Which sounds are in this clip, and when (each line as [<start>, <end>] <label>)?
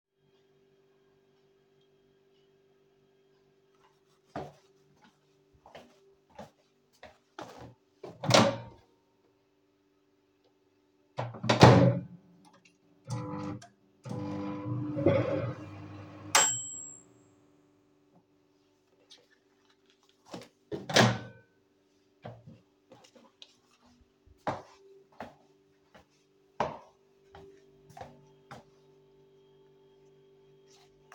[4.12, 8.12] footsteps
[8.02, 8.76] microwave
[11.09, 17.14] microwave
[20.20, 21.62] microwave
[24.41, 29.72] footsteps